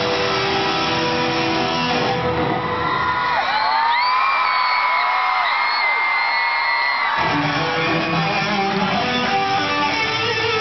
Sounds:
musical instrument, strum, electric guitar, bass guitar, plucked string instrument, acoustic guitar, music, guitar

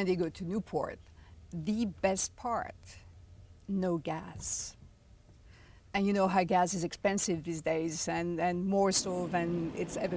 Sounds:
speech, boat, vehicle

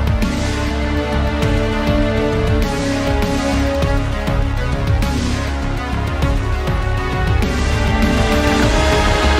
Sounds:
music

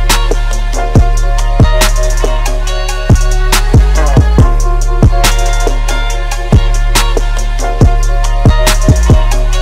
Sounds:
music

